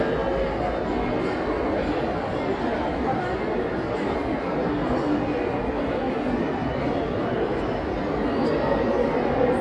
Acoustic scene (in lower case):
crowded indoor space